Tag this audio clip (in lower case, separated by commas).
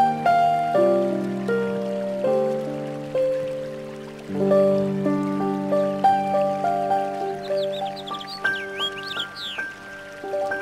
music, animal